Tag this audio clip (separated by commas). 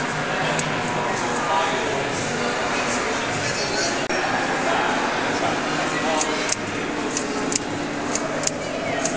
Speech, Typewriter